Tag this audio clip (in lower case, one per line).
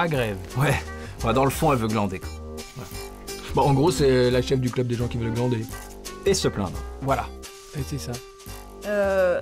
speech
music